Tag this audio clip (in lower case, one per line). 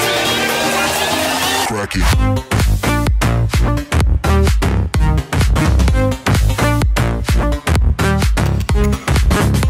music
speech